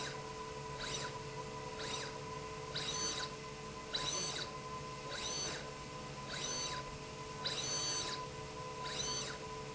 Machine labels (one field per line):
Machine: slide rail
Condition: abnormal